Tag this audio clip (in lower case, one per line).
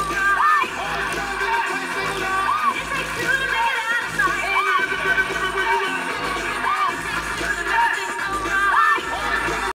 music